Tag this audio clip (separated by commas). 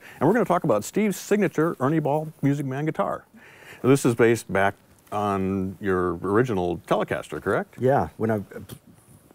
Speech